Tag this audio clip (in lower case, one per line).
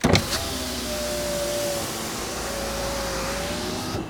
vehicle
car
motor vehicle (road)